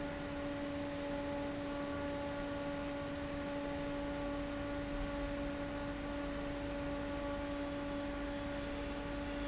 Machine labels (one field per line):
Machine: fan